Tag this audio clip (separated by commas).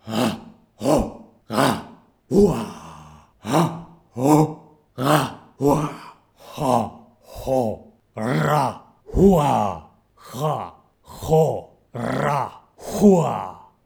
Shout, Human voice